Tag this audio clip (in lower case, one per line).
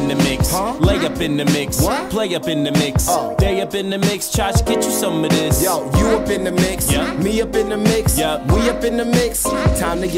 music